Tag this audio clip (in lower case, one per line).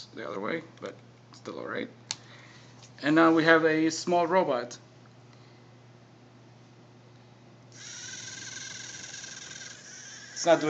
speech